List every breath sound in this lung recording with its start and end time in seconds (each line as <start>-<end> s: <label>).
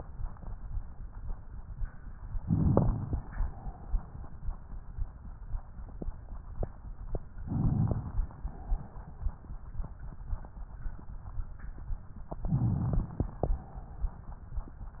2.47-3.32 s: crackles
2.49-3.34 s: inhalation
7.46-8.31 s: inhalation
7.46-8.31 s: crackles
12.41-13.26 s: inhalation
12.41-13.26 s: crackles